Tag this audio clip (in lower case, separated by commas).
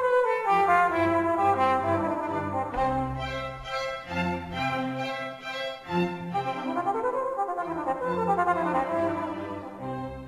trumpet, brass instrument, trombone, cello, music